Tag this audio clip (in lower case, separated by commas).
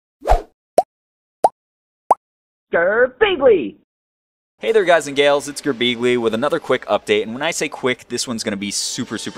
speech, plop, music